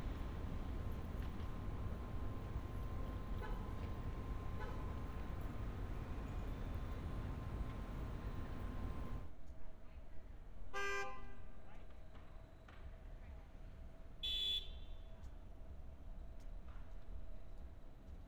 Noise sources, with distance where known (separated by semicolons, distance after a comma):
car horn